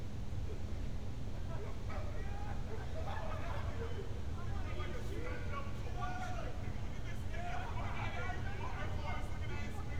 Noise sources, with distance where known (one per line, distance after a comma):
person or small group shouting